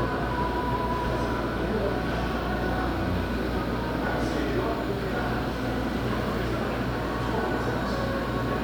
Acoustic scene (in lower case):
subway station